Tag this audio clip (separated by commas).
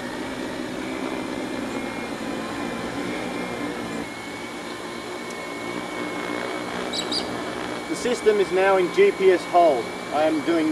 Speech